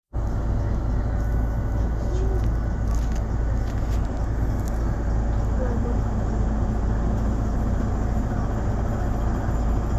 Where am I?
on a bus